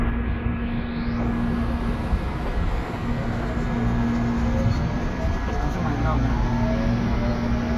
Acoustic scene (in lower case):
subway station